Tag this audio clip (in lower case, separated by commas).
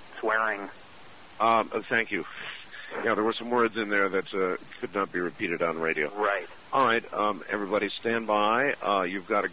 speech